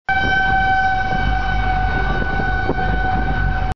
An emergency siren wails